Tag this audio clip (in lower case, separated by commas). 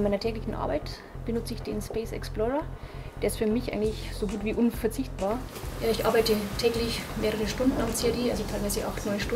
music, speech